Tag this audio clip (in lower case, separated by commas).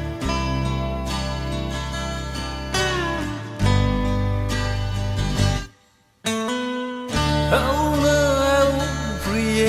music